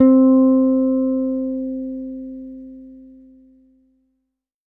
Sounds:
Bass guitar, Music, Musical instrument, Plucked string instrument, Guitar

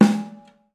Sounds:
Percussion, Musical instrument, Music, Drum, Snare drum

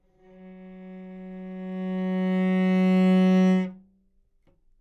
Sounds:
Bowed string instrument, Music, Musical instrument

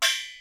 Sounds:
Music, Percussion, Musical instrument, Gong

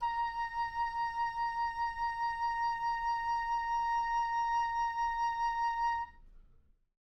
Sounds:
Wind instrument, Musical instrument, Music

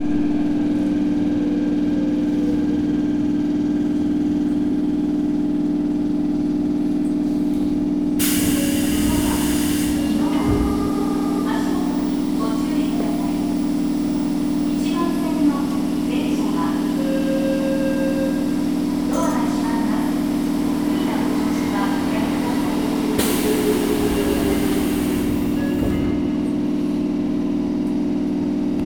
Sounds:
underground, Vehicle, Rail transport, Train

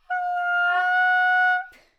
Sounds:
woodwind instrument, Musical instrument, Music

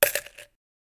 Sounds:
Coin (dropping), Domestic sounds

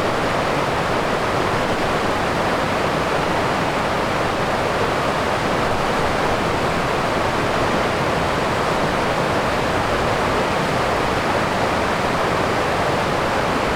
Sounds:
Water

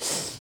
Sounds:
Breathing, Respiratory sounds

